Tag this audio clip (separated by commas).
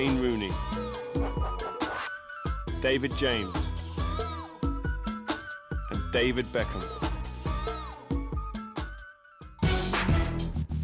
Music, Speech